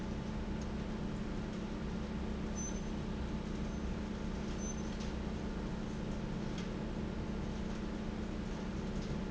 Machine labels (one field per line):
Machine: fan